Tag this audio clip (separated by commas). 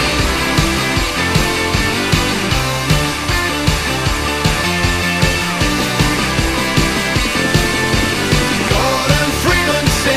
Music